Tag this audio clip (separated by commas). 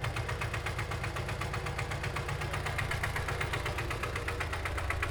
Idling, Engine